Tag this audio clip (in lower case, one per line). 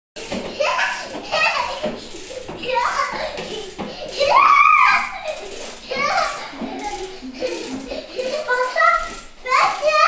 child speech
snicker